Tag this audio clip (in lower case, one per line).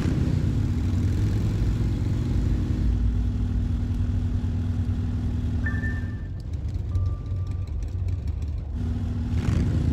motor vehicle (road)